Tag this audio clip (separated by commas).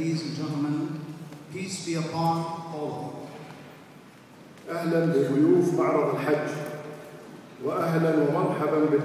Narration, Speech, man speaking